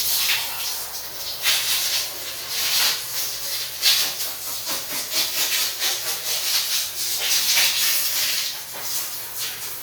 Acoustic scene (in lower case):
restroom